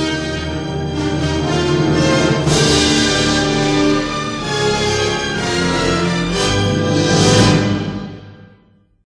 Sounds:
music, theme music

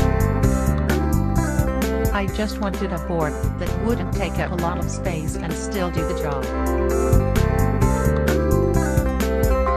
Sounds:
speech, music

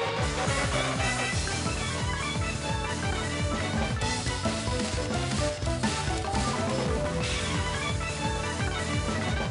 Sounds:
music

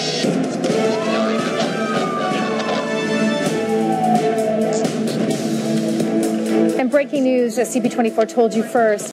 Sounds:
music, speech

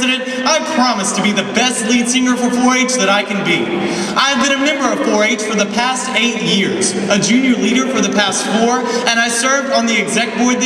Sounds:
man speaking, narration, speech

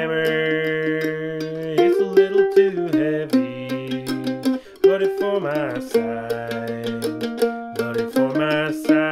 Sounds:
playing mandolin

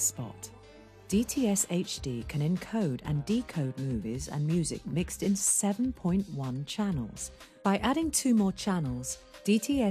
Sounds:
music, speech

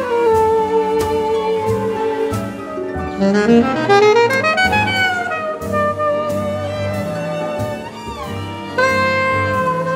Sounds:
jazz, music, saxophone, musical instrument, orchestra

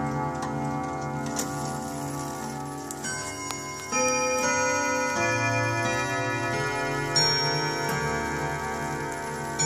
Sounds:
tick-tock, music, tick

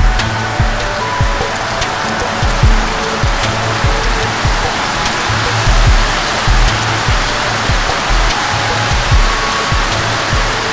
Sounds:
music

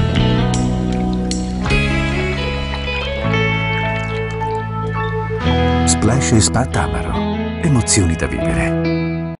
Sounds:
music

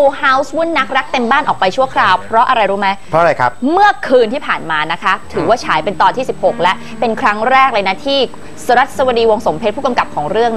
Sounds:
speech, music

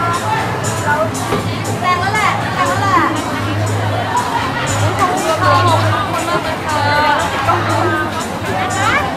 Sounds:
music, speech

